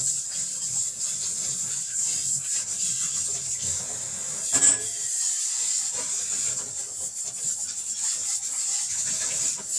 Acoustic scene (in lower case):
kitchen